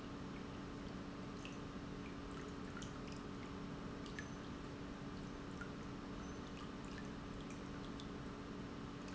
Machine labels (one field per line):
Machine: pump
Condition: normal